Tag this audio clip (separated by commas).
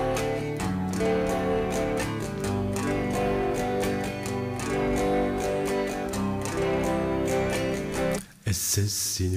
Plucked string instrument, Guitar, Electric guitar, Music, Musical instrument